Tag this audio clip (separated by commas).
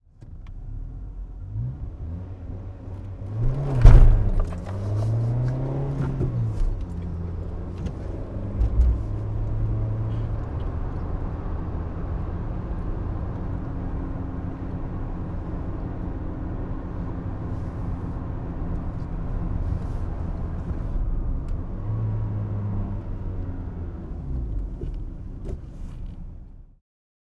Accelerating, Engine